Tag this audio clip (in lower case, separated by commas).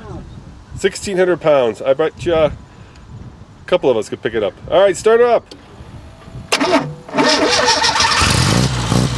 speech, car, vehicle, outside, rural or natural